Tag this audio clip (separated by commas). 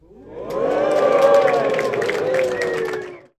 Applause, Crowd, Cheering, Human group actions